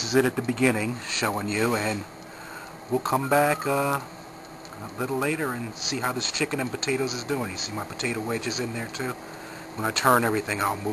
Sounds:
speech

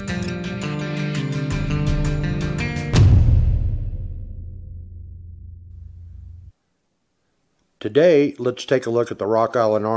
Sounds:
music, speech

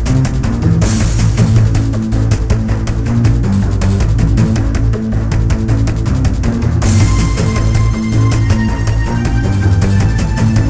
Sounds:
music

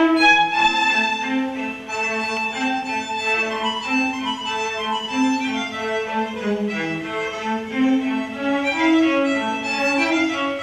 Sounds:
fiddle, music, musical instrument

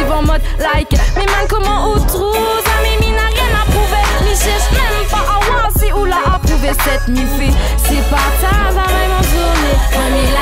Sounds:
hip hop music, pop music, music

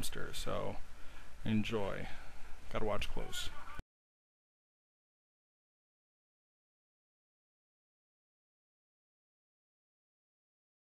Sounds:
speech

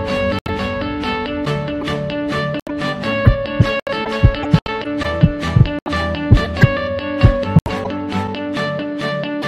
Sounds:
music, heart sounds

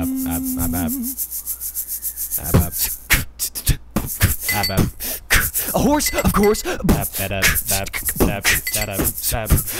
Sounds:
music

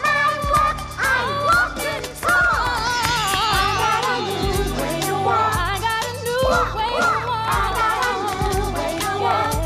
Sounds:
child singing

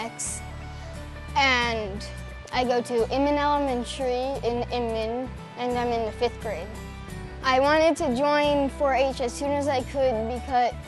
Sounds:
music, speech

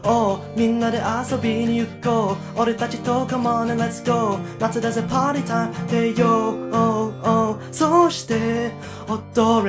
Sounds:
music

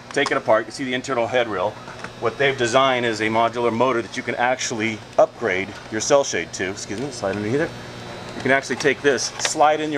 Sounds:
speech

